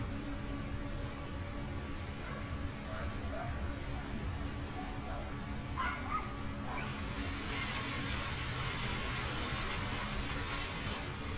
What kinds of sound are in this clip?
engine of unclear size, dog barking or whining